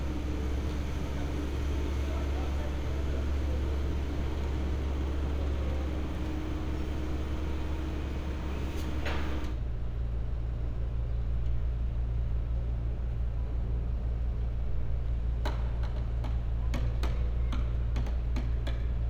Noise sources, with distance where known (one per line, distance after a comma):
large-sounding engine, near